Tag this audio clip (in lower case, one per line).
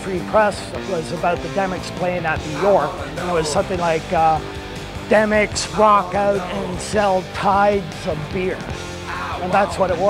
speech
music